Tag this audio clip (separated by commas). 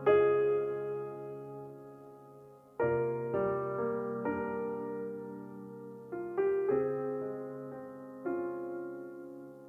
Music